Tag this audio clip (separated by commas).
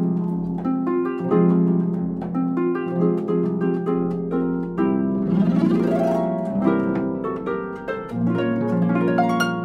Pizzicato, playing harp, Harp